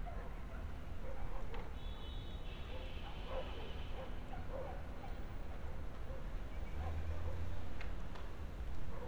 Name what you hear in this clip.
medium-sounding engine, large-sounding engine, car horn, dog barking or whining